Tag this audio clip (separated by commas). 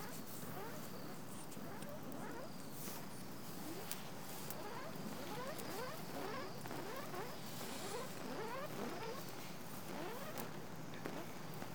Fire